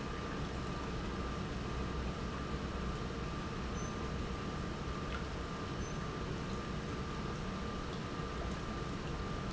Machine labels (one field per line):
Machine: pump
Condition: normal